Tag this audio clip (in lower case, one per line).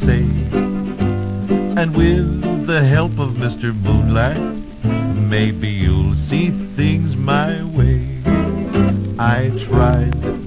music